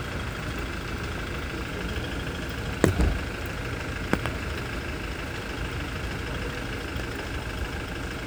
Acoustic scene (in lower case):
residential area